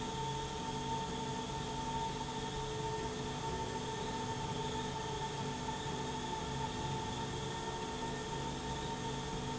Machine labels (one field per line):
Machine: slide rail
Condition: normal